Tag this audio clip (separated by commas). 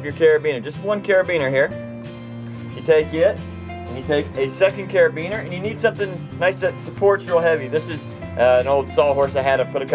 Speech, Music